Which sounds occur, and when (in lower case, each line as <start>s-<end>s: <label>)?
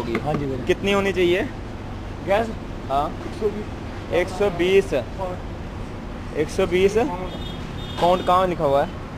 0.0s-1.5s: male speech
0.0s-9.1s: conversation
0.0s-9.1s: motor vehicle (road)
0.0s-9.1s: wind
0.1s-0.2s: tick
0.3s-0.3s: tick
2.2s-2.5s: male speech
2.9s-3.7s: male speech
4.1s-5.4s: male speech
6.3s-7.4s: male speech
7.2s-8.4s: vehicle horn
7.9s-9.0s: male speech